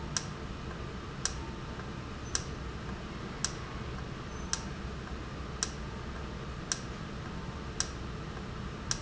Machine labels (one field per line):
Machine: valve